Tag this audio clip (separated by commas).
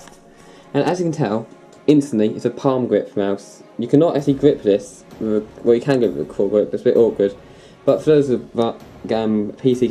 Music, Speech